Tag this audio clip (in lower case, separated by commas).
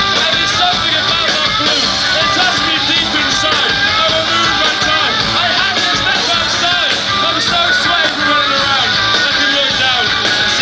music